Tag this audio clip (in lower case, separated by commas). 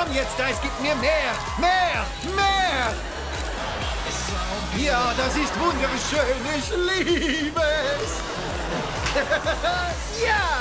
music, speech